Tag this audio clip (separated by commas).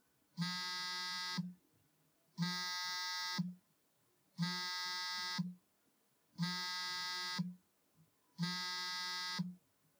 Telephone, Alarm